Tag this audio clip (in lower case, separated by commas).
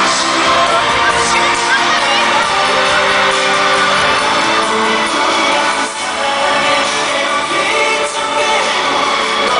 music, speech